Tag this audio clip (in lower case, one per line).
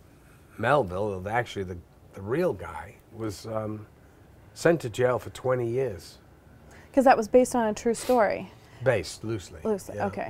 speech
male speech